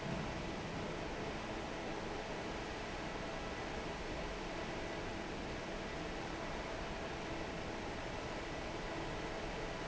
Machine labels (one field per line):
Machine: fan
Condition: normal